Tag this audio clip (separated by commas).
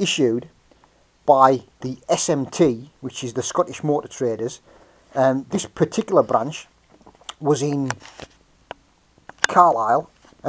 Speech